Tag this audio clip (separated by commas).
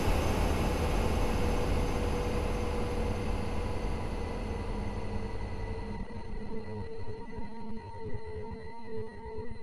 Music